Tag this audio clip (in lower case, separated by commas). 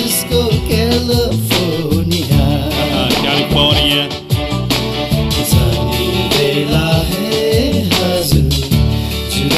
music, speech